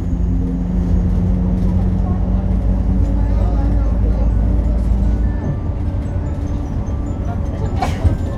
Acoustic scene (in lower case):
bus